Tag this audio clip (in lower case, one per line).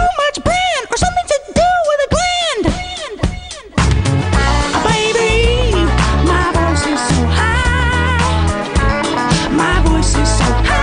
music